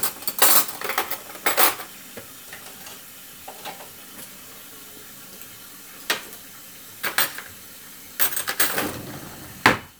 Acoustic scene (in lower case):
kitchen